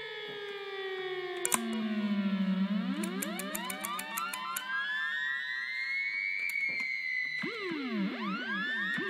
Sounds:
siren

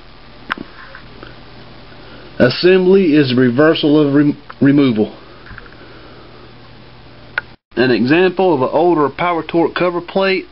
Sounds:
speech

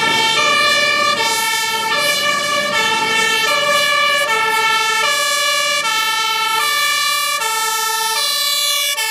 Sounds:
emergency vehicle
fire engine
siren

